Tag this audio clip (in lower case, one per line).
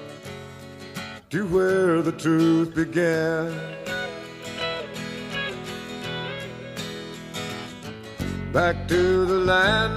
music